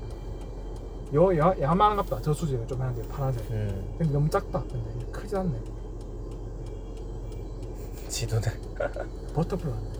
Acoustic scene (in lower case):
car